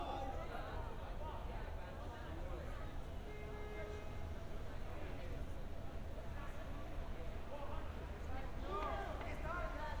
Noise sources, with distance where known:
person or small group shouting

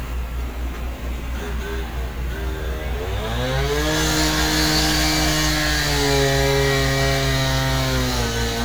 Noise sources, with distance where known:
unidentified powered saw, near

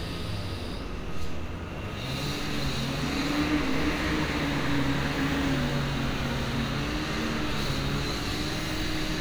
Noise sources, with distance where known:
engine of unclear size; large rotating saw

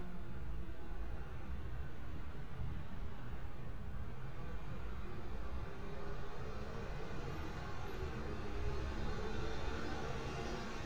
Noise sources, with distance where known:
engine of unclear size

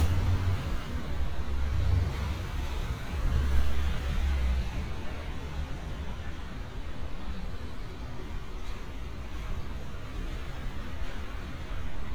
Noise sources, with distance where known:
engine of unclear size

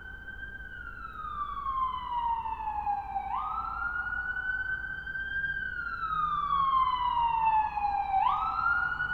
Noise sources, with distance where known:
siren, near

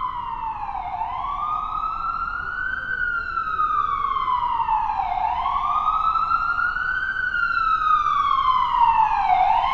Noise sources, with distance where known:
siren, near

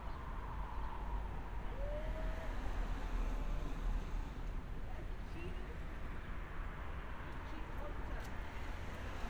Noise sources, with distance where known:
person or small group talking

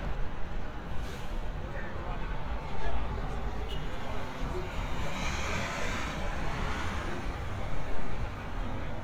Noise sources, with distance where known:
medium-sounding engine; unidentified human voice

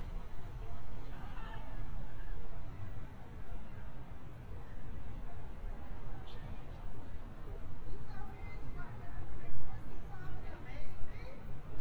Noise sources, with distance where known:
person or small group talking, far

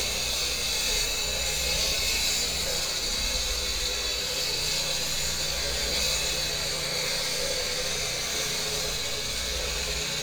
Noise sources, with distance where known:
unidentified powered saw, near

